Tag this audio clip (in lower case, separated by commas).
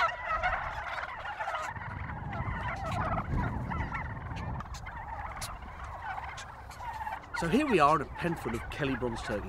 turkey gobbling